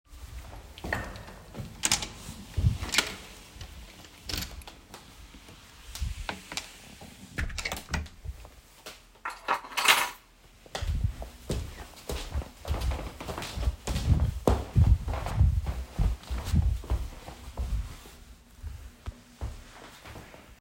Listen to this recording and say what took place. I I walk to a door open it walk inside the apartment close the door put down my keys.